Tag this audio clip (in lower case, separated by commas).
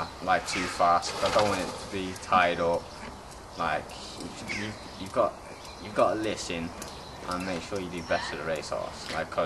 speech, caw, crow, outside, rural or natural